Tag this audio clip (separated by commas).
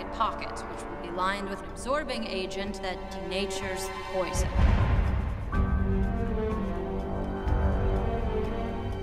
Speech, Music